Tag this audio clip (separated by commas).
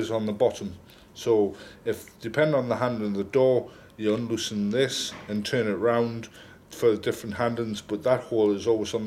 Speech